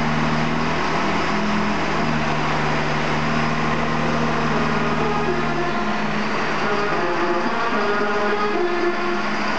Engine running followed by horns honking